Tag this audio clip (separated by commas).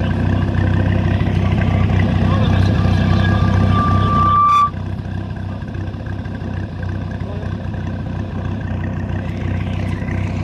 Speech